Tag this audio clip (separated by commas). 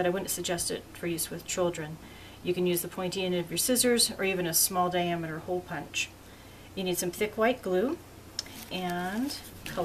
Speech